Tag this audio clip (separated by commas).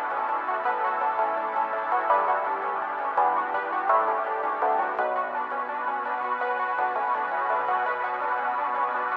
Music